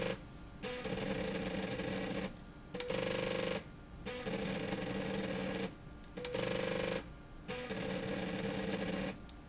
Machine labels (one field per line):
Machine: slide rail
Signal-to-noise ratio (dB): 6 dB